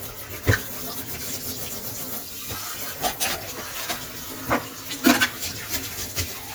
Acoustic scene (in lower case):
kitchen